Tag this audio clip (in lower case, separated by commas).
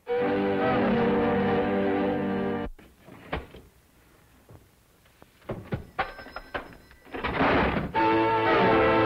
telephone, music, telephone bell ringing